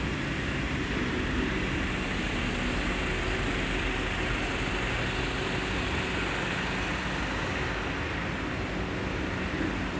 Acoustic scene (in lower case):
residential area